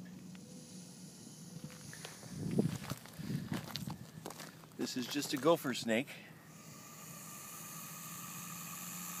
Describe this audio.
Wind blows and a snake hisses a man speaks and walks around